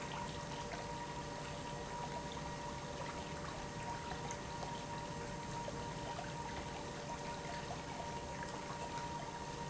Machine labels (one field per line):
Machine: pump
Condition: normal